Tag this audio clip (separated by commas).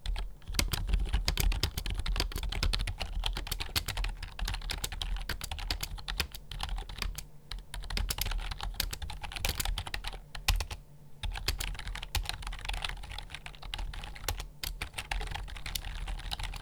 Domestic sounds, Typing, Computer keyboard